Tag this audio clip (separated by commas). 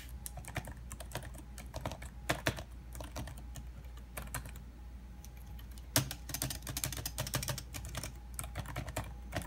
typing on computer keyboard